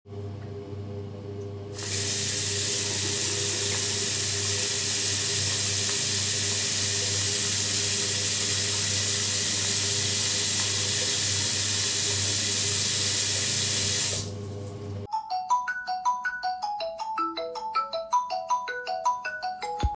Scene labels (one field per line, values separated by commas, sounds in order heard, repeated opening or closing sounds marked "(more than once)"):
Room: lavatory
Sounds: running water, phone ringing